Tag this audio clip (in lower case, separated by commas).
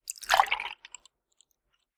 fill (with liquid), liquid